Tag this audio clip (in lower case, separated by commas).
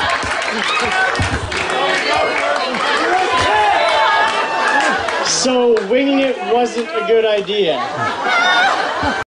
male speech, speech, monologue